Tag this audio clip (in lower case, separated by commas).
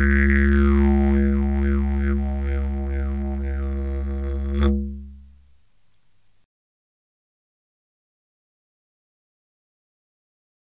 playing didgeridoo